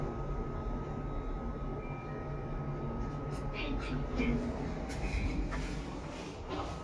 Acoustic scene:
elevator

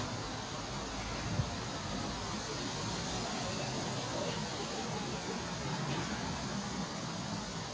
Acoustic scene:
park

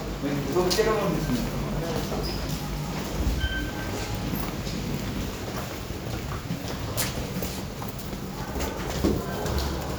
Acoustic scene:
elevator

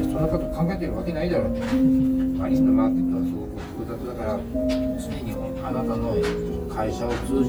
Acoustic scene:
restaurant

